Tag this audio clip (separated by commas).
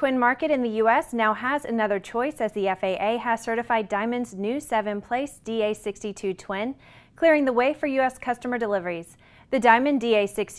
Speech